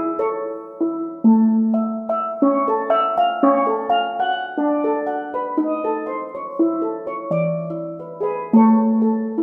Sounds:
musical instrument, music, classical music

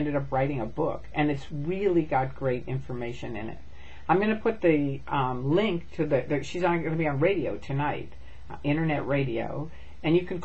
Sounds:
speech

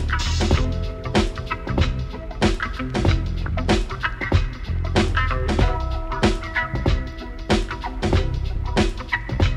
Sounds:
music

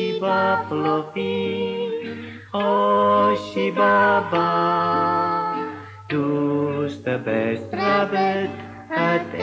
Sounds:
music, lullaby

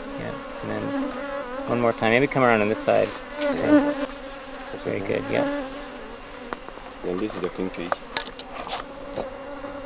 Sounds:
housefly, insect, bee or wasp

